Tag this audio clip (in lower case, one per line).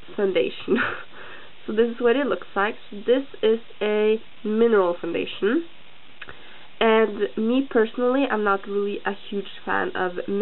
speech